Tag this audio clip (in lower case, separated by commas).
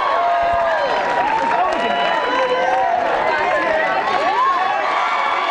speech